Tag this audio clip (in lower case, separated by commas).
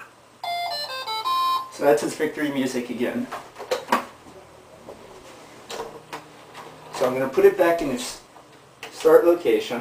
inside a small room, speech, music